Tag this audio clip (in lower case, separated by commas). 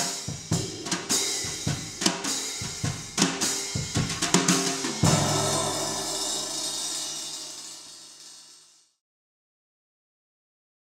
drum, hi-hat, drum kit, snare drum, bass drum, music, musical instrument, cymbal